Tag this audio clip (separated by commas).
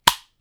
Tools